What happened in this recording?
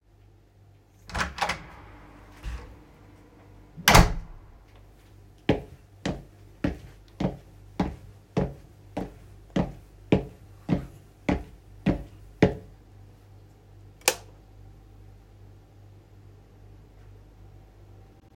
I opened the hallway door, walked inside and turned on the light.